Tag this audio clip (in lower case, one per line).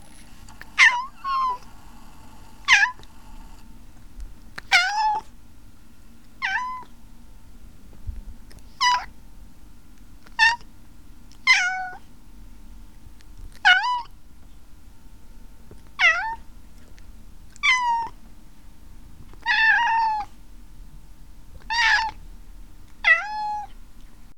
domestic animals
animal
cat